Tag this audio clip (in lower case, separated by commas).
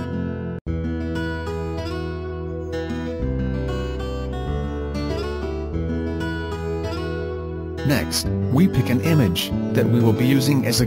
music, speech